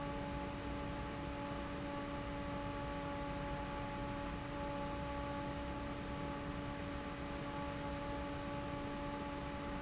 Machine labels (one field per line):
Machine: fan